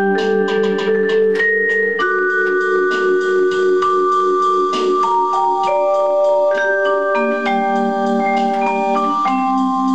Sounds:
xylophone, musical instrument, vibraphone, music

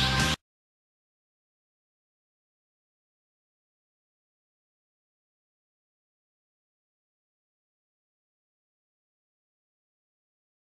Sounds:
music

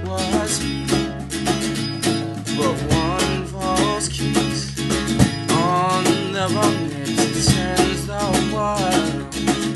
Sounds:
music

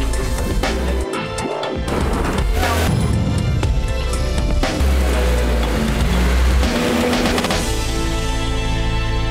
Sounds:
vehicle, music

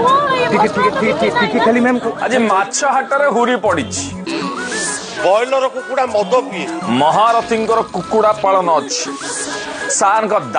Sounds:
speech, music

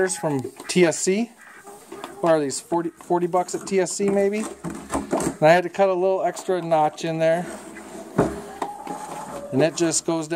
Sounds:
cluck, chicken, fowl

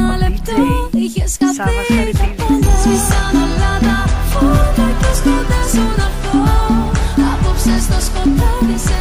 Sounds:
music, afrobeat, speech

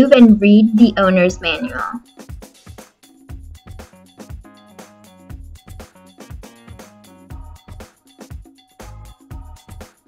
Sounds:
speech, music

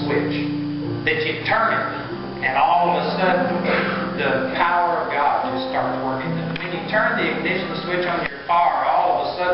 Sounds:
speech, music

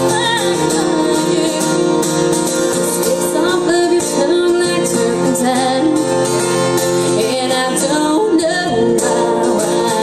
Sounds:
musical instrument, music, strum, plucked string instrument, guitar

